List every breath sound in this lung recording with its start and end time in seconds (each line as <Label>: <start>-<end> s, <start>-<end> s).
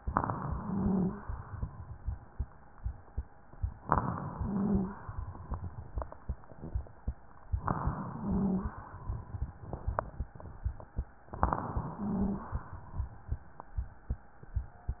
Inhalation: 0.00-1.20 s, 3.77-4.96 s, 7.57-8.77 s, 11.29-12.49 s
Wheeze: 0.50-1.22 s, 4.29-5.00 s, 8.13-8.85 s, 11.92-12.51 s